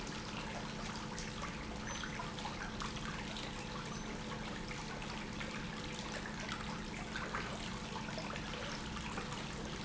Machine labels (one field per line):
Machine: pump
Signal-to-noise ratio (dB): 0 dB